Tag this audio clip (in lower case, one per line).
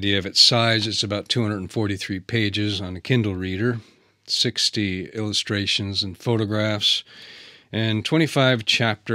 speech